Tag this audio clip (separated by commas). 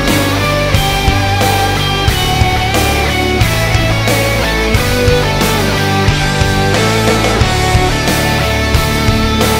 Music